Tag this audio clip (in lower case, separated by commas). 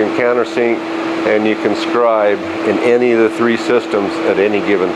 speech